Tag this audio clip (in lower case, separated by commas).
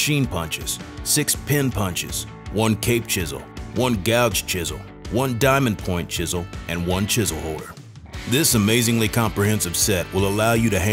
music, speech